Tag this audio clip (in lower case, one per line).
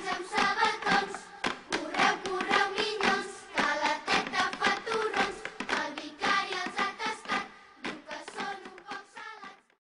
music